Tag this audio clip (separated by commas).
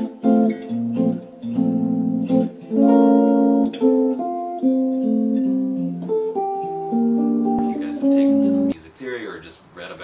Musical instrument, Music, Guitar, Speech